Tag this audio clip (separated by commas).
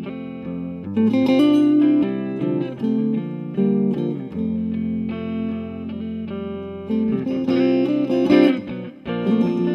Music